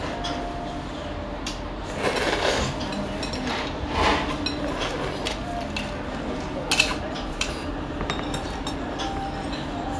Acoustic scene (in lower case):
restaurant